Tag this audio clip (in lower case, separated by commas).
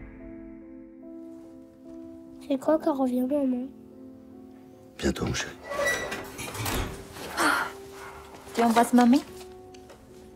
music, speech